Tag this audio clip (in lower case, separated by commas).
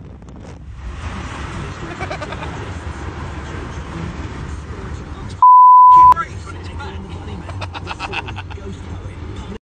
speech